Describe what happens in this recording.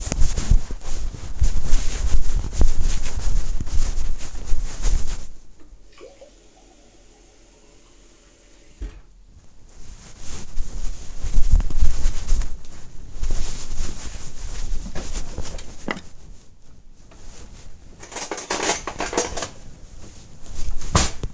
The Phone was in my pocket while I walked to the sink, where I filled a glas with water. Then I walked towards a cabinet drawer, which I opened. I picked up a spoon out of the drawer and walked away.